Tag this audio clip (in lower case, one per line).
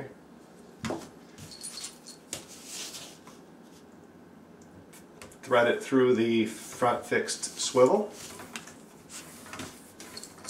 speech
inside a small room
dishes, pots and pans